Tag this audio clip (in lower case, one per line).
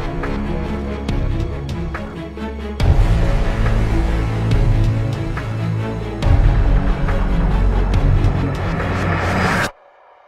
music